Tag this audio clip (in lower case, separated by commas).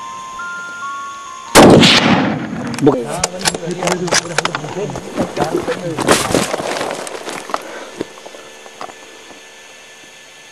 speech, outside, rural or natural, music